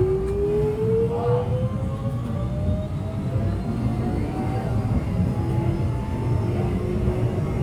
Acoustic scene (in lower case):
subway train